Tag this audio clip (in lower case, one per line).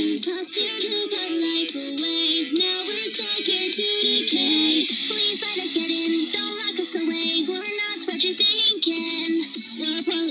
music